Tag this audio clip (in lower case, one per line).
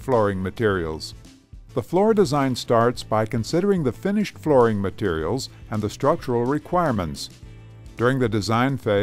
speech
music